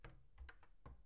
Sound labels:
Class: cupboard; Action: opening; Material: wooden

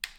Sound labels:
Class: switch; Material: plastic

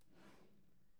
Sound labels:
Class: drawer; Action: opening; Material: wooden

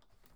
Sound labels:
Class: window; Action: opening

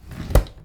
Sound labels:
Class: drawer; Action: closing; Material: wooden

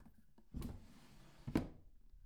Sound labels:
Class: drawer; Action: closing; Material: wooden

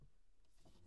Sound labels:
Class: cupboard; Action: opening; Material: glass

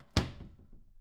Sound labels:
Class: cupboard; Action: closing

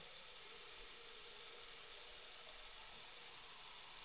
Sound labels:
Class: water tap; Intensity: high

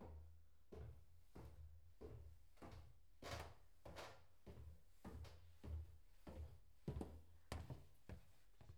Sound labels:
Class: footsteps; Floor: wooden floor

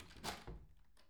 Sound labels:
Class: cupboard; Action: opening; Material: wooden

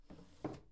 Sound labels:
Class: drawer; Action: opening; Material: wooden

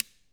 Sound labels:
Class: switch; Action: being turned off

